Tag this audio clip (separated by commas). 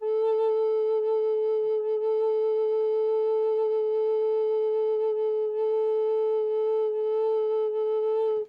Musical instrument, Music, Wind instrument